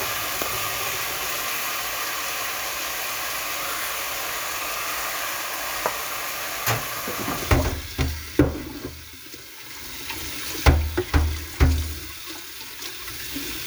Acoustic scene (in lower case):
kitchen